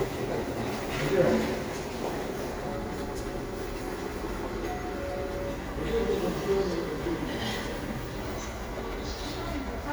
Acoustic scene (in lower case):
crowded indoor space